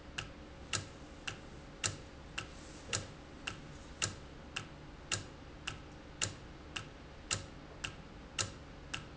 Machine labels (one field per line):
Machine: valve